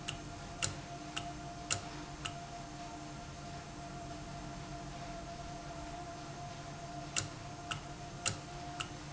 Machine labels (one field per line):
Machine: valve